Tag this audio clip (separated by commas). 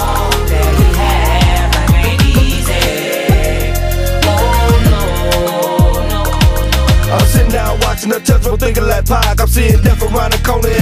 Music